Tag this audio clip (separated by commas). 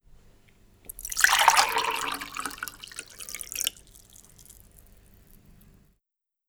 Liquid